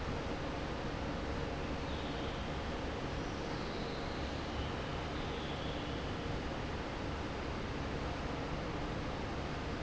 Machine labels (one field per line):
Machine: fan